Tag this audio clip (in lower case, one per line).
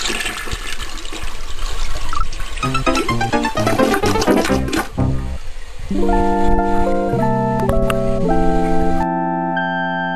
music